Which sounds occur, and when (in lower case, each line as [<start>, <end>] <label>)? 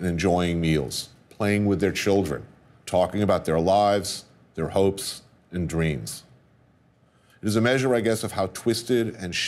[0.00, 1.04] man speaking
[0.00, 9.45] mechanisms
[1.32, 2.48] man speaking
[2.88, 4.26] man speaking
[4.55, 5.21] man speaking
[5.54, 6.28] man speaking
[7.02, 7.43] breathing
[7.41, 9.45] man speaking